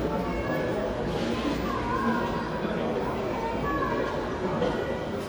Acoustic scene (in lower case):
cafe